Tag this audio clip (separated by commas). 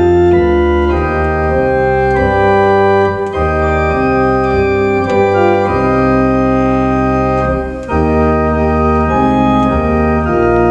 playing electronic organ